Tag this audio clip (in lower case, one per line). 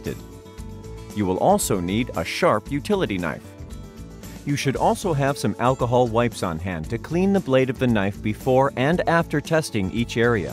speech
music